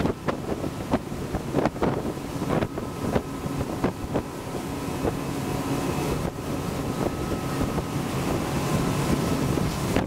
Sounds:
motorboat
vehicle

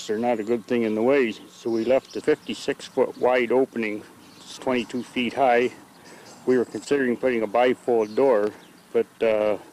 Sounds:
speech

